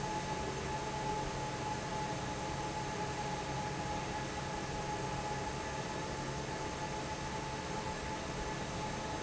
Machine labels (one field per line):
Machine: fan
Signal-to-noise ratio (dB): -6 dB